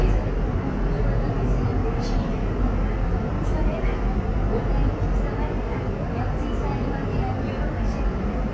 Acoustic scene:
subway train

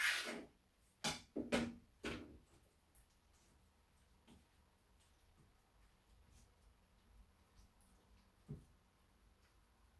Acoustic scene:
kitchen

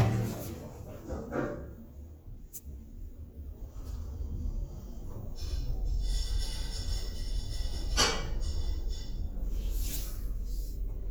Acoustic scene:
elevator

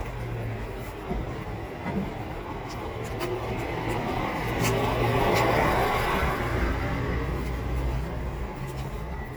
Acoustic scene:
residential area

